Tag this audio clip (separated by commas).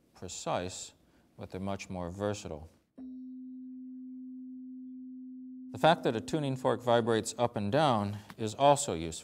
Tuning fork